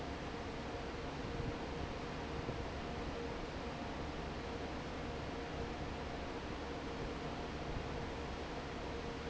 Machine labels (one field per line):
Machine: fan